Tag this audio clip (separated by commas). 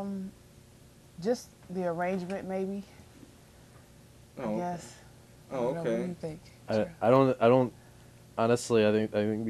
Speech